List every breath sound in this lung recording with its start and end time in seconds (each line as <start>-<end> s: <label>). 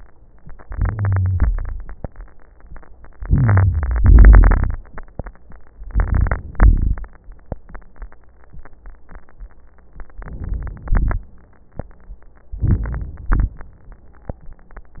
0.61-1.46 s: inhalation
0.61-1.46 s: crackles
1.46-2.12 s: exhalation
1.46-2.12 s: crackles
3.17-3.99 s: inhalation
3.17-3.99 s: crackles
4.01-4.82 s: exhalation
4.01-4.82 s: crackles
5.72-6.53 s: inhalation
5.72-6.53 s: crackles
6.57-7.10 s: exhalation
6.57-7.10 s: crackles
10.13-10.90 s: inhalation
10.13-10.90 s: crackles
10.91-11.36 s: exhalation
10.91-11.36 s: crackles
12.54-13.32 s: crackles
12.58-13.34 s: inhalation
13.32-13.64 s: exhalation
13.32-13.64 s: crackles